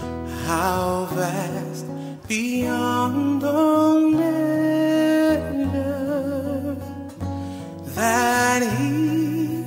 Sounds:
tender music, music

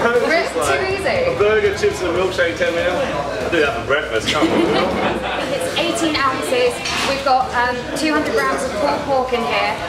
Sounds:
speech

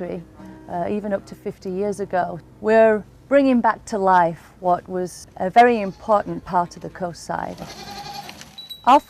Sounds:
music, sheep, bleat, speech

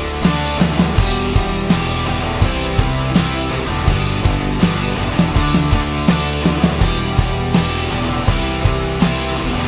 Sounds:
rock music, music

